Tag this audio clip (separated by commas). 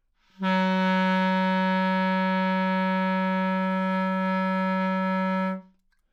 Musical instrument, woodwind instrument, Music